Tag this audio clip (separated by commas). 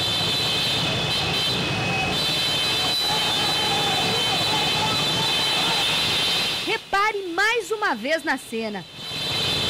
Speech